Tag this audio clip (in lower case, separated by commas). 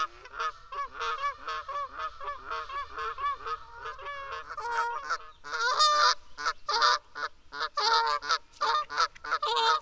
goose honking